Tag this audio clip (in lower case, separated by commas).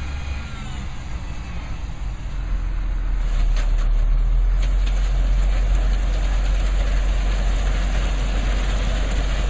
truck, vehicle